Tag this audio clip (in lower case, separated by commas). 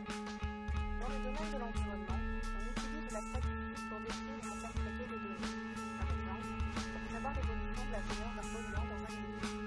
speech, music